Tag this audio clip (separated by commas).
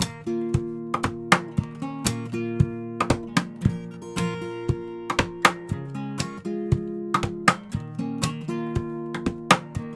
Guitar, Musical instrument, Music, Plucked string instrument